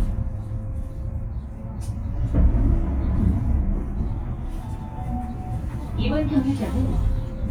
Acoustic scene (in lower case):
bus